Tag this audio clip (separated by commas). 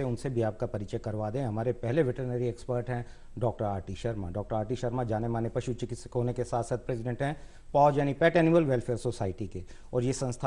Speech